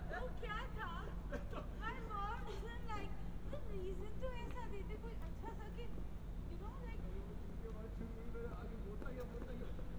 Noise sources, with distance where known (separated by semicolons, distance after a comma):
person or small group talking, near